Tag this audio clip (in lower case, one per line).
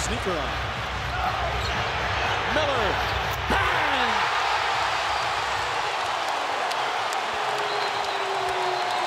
speech